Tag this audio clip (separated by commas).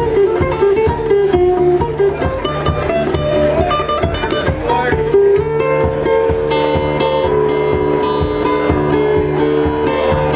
Music, Speech